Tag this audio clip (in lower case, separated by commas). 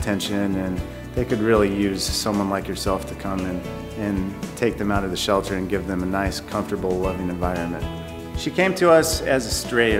music, speech